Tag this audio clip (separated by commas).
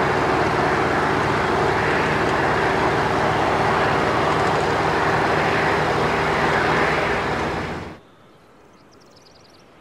Car, Vehicle